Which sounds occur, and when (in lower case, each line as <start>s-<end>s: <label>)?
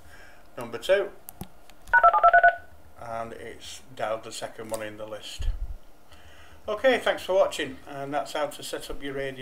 0.0s-0.4s: breathing
0.0s-9.4s: mechanisms
0.5s-0.7s: tick
0.5s-1.2s: man speaking
1.2s-1.4s: tick
1.6s-2.1s: tick
1.9s-2.7s: telephone dialing
2.9s-5.5s: man speaking
4.6s-4.7s: tick
6.0s-6.6s: breathing
6.6s-9.4s: man speaking